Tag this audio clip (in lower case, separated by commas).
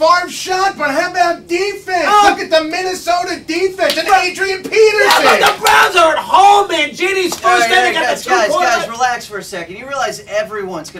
speech